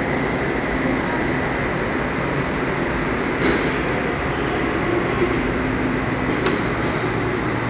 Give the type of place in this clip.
subway station